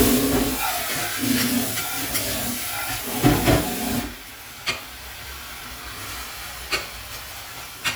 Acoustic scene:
kitchen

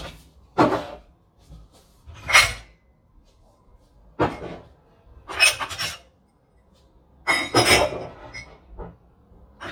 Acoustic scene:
kitchen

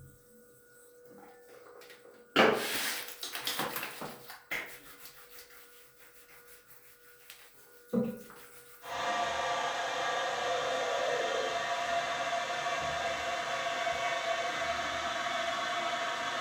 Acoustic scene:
restroom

